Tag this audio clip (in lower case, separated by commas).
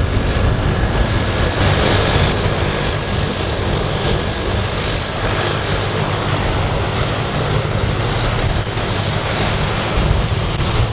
vehicle, propeller, aircraft